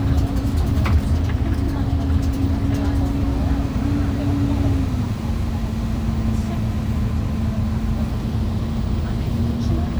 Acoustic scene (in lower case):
bus